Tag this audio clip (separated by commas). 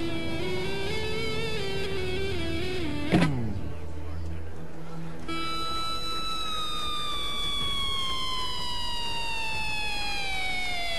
Music